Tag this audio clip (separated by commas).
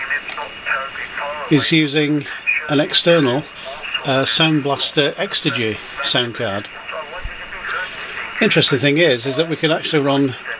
Speech